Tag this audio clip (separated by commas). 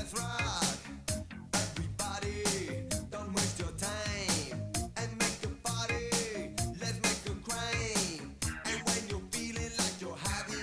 Music, Rock and roll